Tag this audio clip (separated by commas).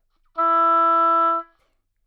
woodwind instrument, Music, Musical instrument